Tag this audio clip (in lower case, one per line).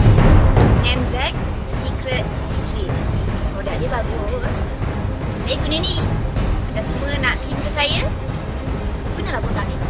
speech
music